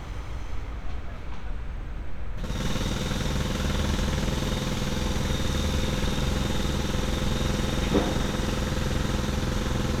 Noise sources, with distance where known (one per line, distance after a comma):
jackhammer, near